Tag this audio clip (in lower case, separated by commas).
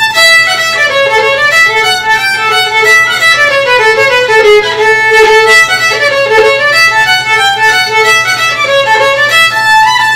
music, musical instrument, violin